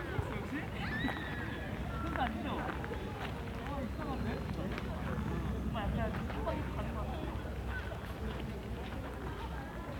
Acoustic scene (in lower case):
park